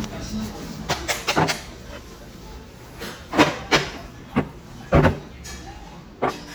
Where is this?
in a restaurant